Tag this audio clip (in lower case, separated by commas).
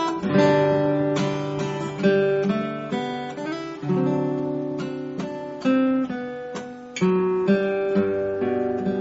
music, strum, acoustic guitar, plucked string instrument, musical instrument